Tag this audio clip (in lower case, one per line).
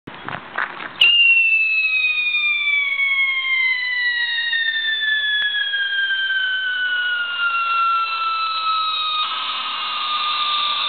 whistle
fireworks